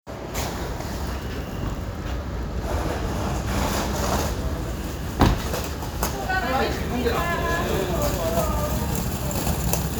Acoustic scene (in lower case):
residential area